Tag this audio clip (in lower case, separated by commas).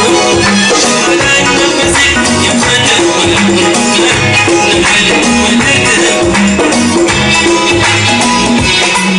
music